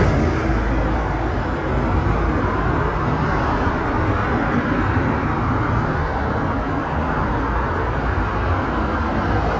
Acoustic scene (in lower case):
street